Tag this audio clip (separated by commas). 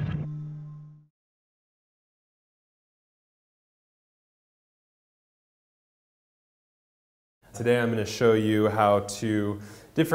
Speech